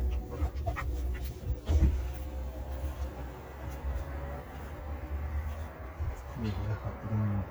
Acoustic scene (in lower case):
car